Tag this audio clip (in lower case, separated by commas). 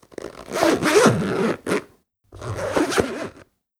zipper (clothing), home sounds